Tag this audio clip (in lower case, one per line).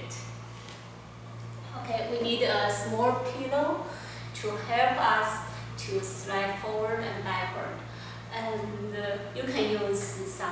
speech